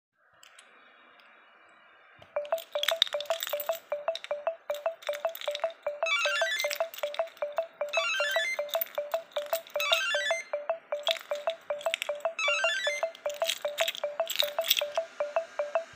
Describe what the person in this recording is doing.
I was spining my keys in the hand while pressing on the door bell. I was waiting for door to open all the while my phone was ringing with a notification that timer is up, which ment that i'm late for dinner.